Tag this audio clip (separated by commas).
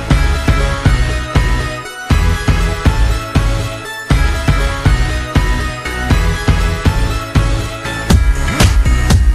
Music